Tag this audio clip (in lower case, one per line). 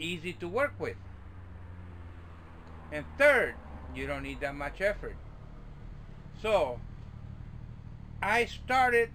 speech